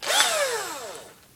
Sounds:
power tool, engine, drill, tools

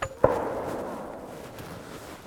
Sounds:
gunshot, explosion

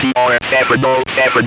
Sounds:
speech, human voice

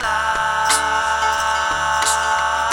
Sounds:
human voice, singing

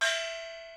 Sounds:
music, musical instrument, percussion, gong

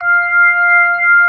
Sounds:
music, musical instrument, keyboard (musical), organ

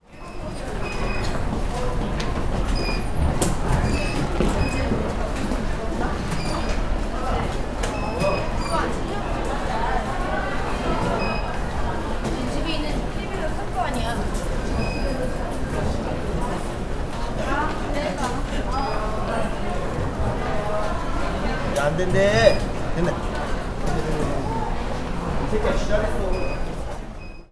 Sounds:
human voice

